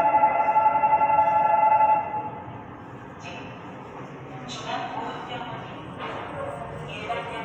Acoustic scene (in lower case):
subway station